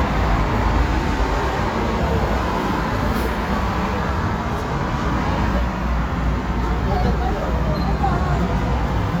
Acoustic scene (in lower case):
street